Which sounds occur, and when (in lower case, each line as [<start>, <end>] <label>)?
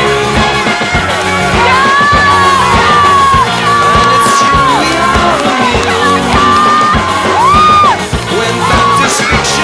[0.00, 9.63] music
[1.49, 5.04] shout
[3.77, 6.97] male singing
[5.47, 7.04] shout
[6.94, 8.21] choir
[7.35, 7.86] shout
[8.24, 9.63] male singing
[8.57, 9.06] shout